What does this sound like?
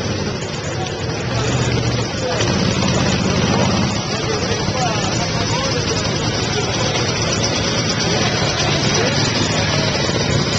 Vehicles on a busy street